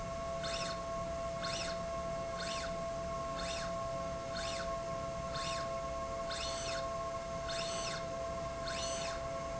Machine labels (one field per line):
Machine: slide rail